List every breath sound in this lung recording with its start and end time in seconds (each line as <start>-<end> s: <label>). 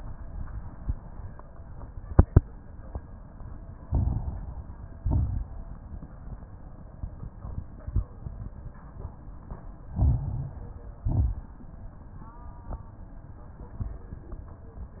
3.83-4.54 s: inhalation
3.83-4.54 s: crackles
5.01-5.71 s: exhalation
5.01-5.71 s: crackles
9.94-10.65 s: inhalation
9.94-10.65 s: crackles
11.02-11.54 s: exhalation
11.02-11.54 s: crackles